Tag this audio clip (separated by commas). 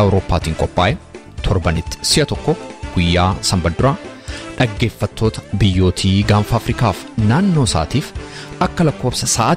Music, Speech